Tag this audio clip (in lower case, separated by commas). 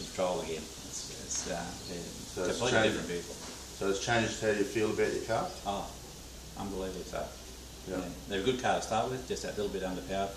speech, inside a large room or hall